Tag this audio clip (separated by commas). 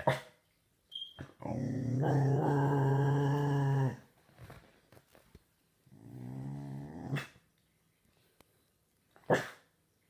dog growling